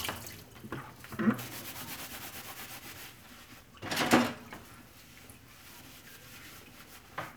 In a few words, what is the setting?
kitchen